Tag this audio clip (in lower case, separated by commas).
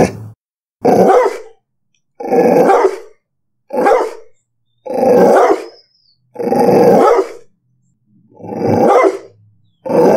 dog growling